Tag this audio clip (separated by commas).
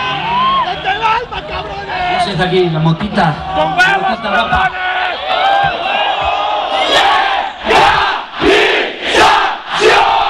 Crowd, Battle cry